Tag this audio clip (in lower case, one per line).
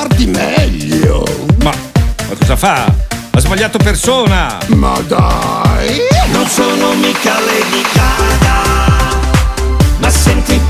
speech
music